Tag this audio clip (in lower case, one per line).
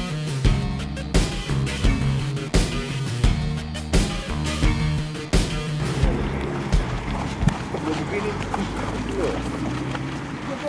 music
outside, rural or natural
speech
run